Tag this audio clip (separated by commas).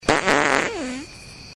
Fart